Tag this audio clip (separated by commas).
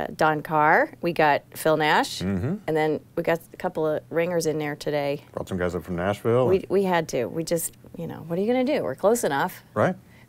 Speech